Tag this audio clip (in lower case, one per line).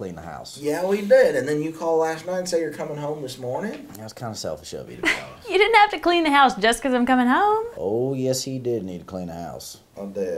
speech